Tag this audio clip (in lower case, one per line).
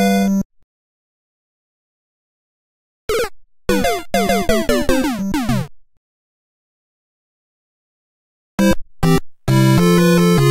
music